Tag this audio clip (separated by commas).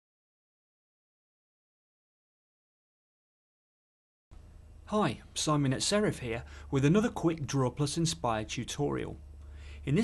Speech